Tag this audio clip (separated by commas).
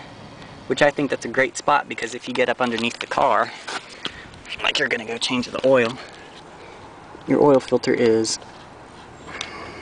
Vehicle